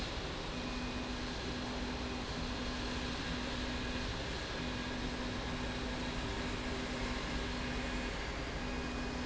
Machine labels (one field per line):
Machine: slide rail